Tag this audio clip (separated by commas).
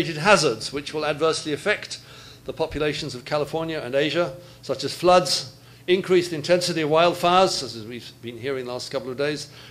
Speech